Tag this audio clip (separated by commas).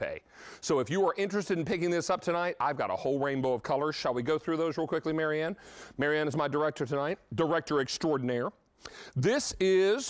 Speech